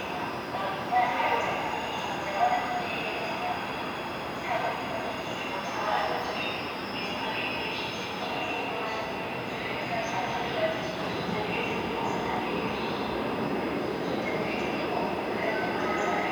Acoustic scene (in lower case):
subway station